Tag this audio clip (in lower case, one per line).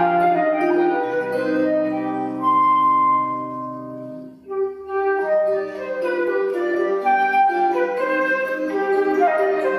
pizzicato